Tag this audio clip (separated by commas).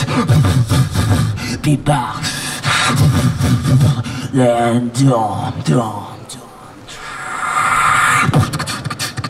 beat boxing